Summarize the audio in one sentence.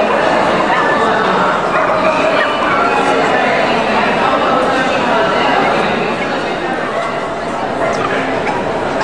The din of many voices in a large area, with the occasional bark of a dog